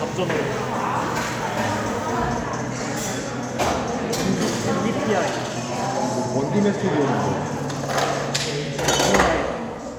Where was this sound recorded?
in a cafe